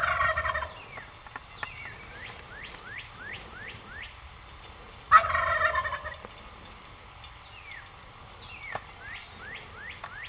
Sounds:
gobble, fowl, turkey, turkey gobbling

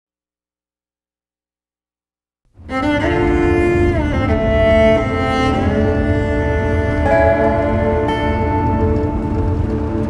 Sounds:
bowed string instrument, music

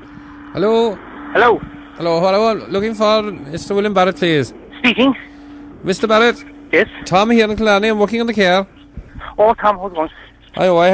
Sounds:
speech

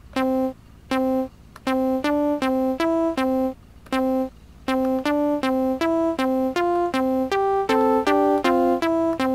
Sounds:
music, sampler

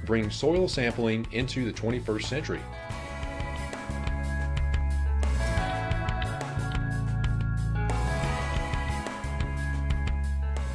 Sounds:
music, speech

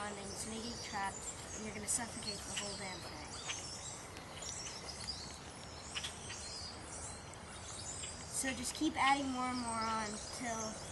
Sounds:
environmental noise, speech

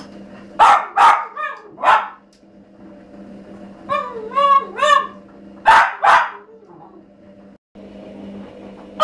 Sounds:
animal, pets

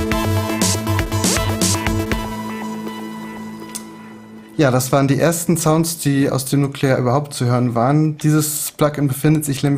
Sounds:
music, sampler, speech

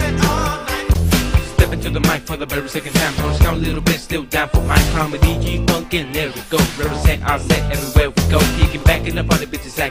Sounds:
music

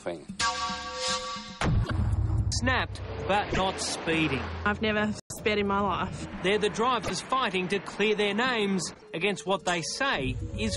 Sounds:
music, speech

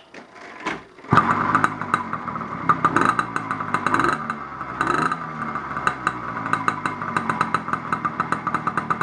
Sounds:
motorcycle, vehicle, bicycle, engine

